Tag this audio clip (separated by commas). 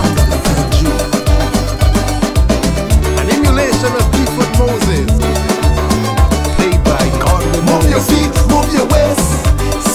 Music, Soundtrack music